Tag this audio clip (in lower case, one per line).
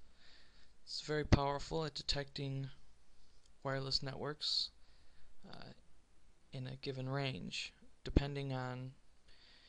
speech